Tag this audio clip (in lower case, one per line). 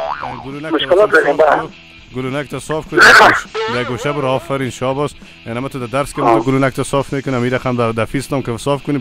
speech
music